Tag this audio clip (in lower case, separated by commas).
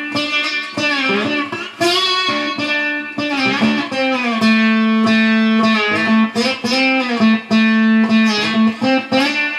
plucked string instrument, musical instrument, guitar, music, strum, acoustic guitar